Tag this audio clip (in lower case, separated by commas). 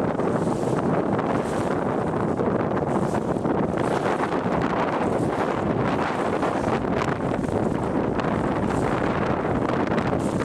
water vehicle